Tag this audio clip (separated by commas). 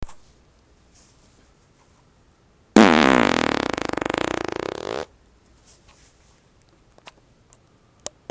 Fart